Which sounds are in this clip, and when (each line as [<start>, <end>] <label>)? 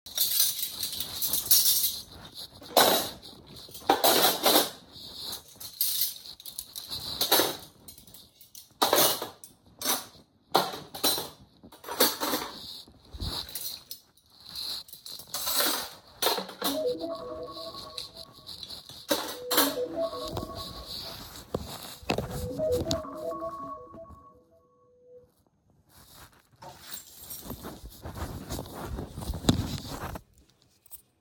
[0.00, 20.11] cutlery and dishes
[16.53, 25.82] phone ringing
[26.44, 31.21] keys